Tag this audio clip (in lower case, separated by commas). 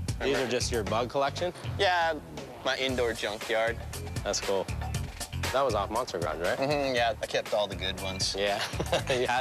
music, speech